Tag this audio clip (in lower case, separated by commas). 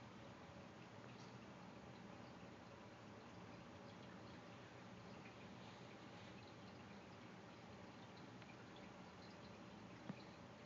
outside, rural or natural